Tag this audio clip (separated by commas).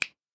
Finger snapping, Hands